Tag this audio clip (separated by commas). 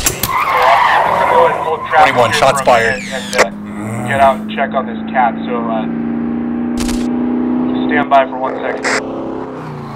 police radio chatter